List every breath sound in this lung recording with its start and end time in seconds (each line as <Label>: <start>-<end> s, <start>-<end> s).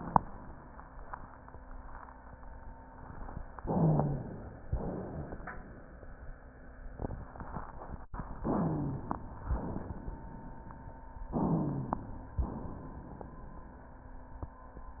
Inhalation: 3.61-4.63 s, 8.44-9.43 s, 11.31-12.43 s
Exhalation: 4.69-5.67 s, 9.58-10.70 s, 12.45-13.57 s
Wheeze: 3.61-4.35 s, 8.44-9.09 s, 11.31-12.43 s